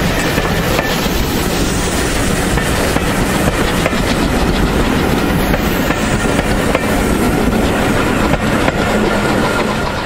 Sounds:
Railroad car, Train, Vehicle, Rail transport

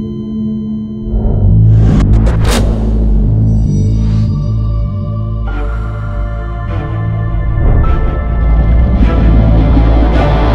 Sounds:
Music

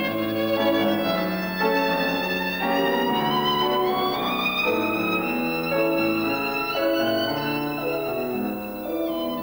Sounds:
fiddle, Musical instrument, Music

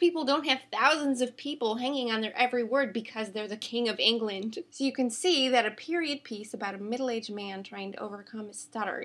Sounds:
Speech, woman speaking

